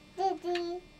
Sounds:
Speech, Human voice, kid speaking

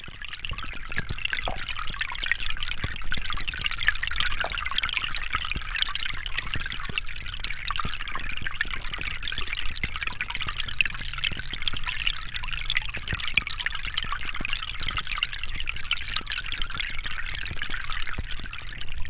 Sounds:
Liquid

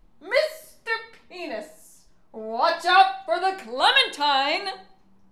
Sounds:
Yell, Human voice, Speech, Shout, Female speech

